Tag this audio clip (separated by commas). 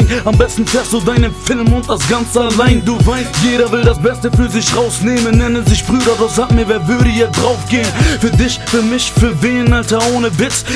Music